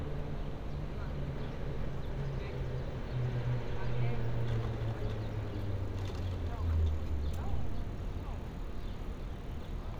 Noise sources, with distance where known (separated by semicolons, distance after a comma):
medium-sounding engine; person or small group talking